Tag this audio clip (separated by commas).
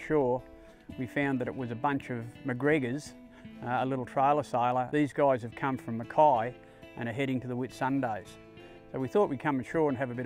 Speech, Music